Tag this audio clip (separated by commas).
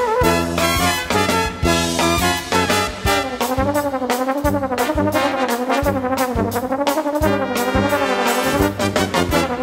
Trombone, Brass instrument